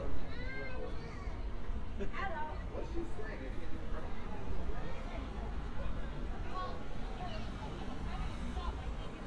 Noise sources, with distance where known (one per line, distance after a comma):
unidentified human voice